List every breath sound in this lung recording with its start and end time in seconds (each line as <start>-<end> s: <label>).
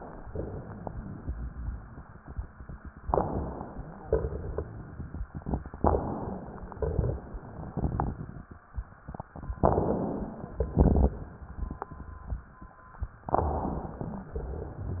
3.04-4.04 s: inhalation
3.04-4.04 s: crackles
4.02-5.29 s: exhalation
4.08-5.29 s: crackles
5.79-6.81 s: inhalation
5.79-6.81 s: crackles
6.87-8.48 s: exhalation
6.87-8.48 s: crackles
9.62-10.63 s: inhalation
10.78-11.20 s: exhalation
10.78-12.71 s: crackles
13.30-14.33 s: inhalation
13.30-14.33 s: crackles